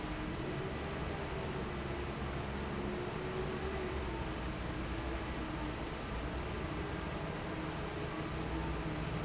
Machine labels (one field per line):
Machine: fan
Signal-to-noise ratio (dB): -6 dB